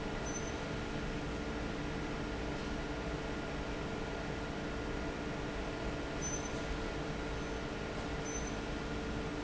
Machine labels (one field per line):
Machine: fan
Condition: normal